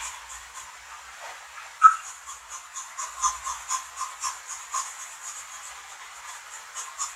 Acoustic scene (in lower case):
restroom